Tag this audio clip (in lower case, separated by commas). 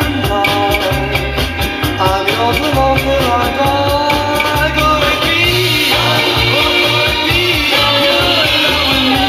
music, psychedelic rock